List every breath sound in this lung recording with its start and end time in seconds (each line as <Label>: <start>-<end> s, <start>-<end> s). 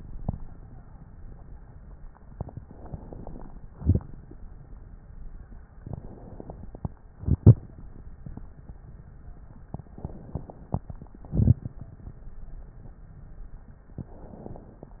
Inhalation: 2.29-3.76 s, 5.77-7.12 s, 9.74-11.09 s, 13.91-15.00 s
Exhalation: 3.75-4.64 s, 7.13-8.02 s, 11.16-11.90 s
Crackles: 2.27-3.72 s, 3.75-4.62 s, 7.13-8.00 s, 9.76-11.09 s, 11.12-11.90 s